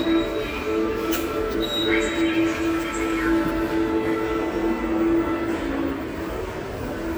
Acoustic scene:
subway station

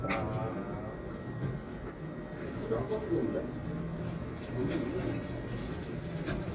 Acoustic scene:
cafe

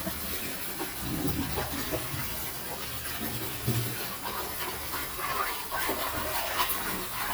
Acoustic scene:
kitchen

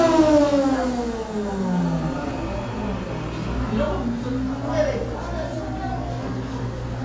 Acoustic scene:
cafe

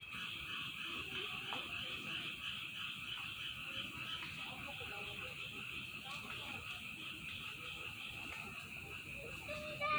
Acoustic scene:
park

